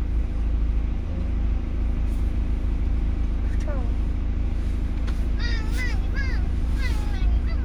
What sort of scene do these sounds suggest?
car